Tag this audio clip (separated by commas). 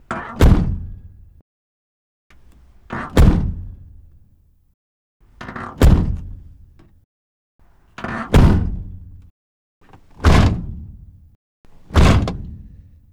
Truck, Motor vehicle (road), Vehicle